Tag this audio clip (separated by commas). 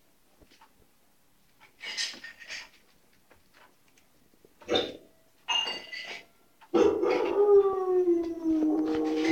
Bark, Dog, Domestic animals, Animal